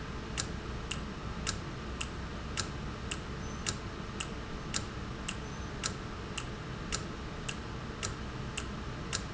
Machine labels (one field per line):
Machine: valve